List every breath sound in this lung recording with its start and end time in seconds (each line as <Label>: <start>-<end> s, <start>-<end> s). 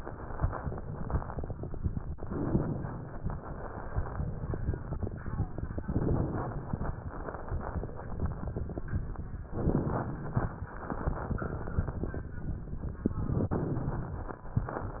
Inhalation: 2.18-3.19 s, 5.77-6.78 s, 9.54-10.55 s, 13.09-14.10 s
Crackles: 2.18-3.19 s, 5.77-6.78 s, 9.54-10.55 s, 13.09-14.10 s